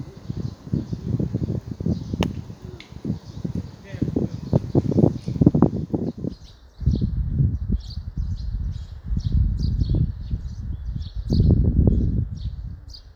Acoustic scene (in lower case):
park